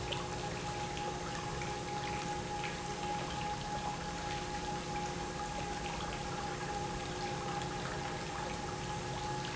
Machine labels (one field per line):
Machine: pump